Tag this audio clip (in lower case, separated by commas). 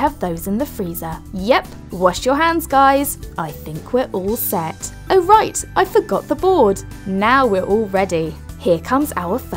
music, speech